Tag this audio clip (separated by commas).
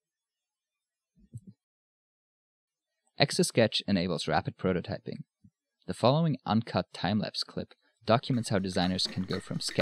Speech